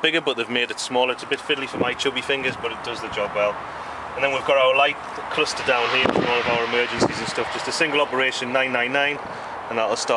An adult male is speaking and a vehicle motor is running